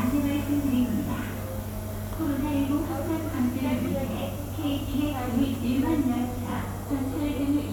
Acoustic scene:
subway station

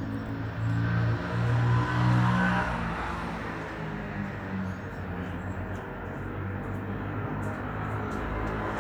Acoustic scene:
street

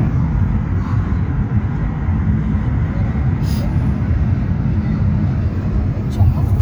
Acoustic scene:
car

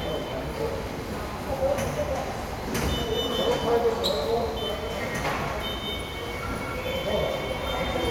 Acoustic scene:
subway station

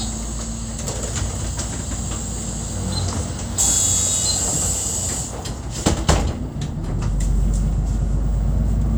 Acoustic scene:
bus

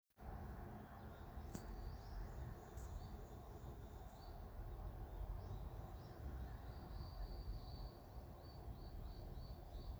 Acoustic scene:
park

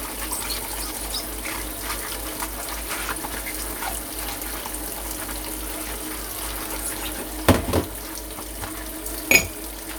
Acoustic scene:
kitchen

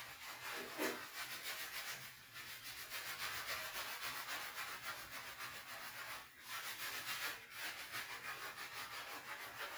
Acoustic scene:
restroom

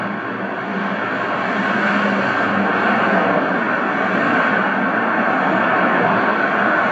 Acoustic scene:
street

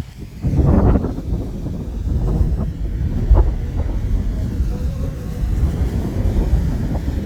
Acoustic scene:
park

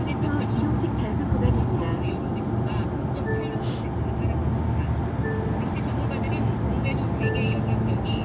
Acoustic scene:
car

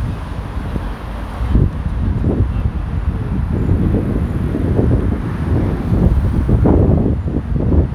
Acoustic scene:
street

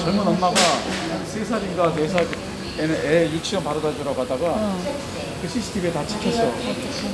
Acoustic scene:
crowded indoor space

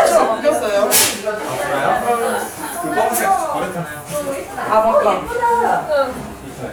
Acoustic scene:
crowded indoor space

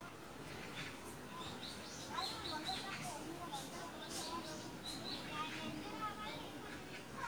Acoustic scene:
park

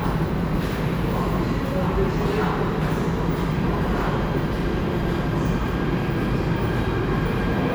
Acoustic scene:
subway station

